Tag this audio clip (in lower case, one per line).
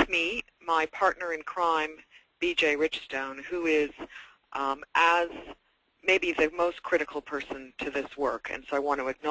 speech